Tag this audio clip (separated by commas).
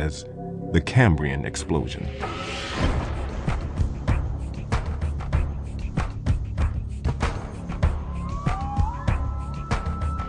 Speech, Music